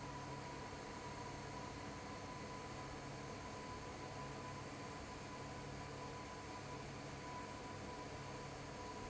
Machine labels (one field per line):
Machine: fan